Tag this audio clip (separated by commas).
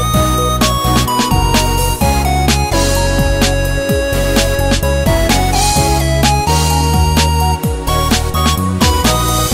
Music